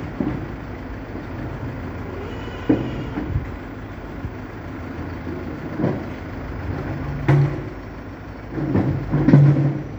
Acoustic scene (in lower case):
residential area